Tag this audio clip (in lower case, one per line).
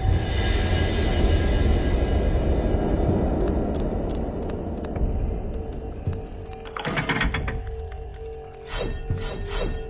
music